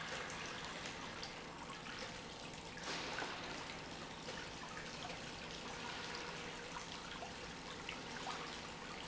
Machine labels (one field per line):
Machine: pump